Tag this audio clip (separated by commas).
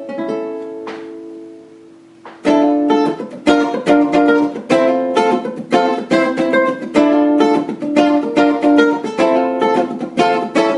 Guitar, Musical instrument, Music, Plucked string instrument